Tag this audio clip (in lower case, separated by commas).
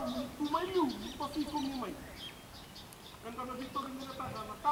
speech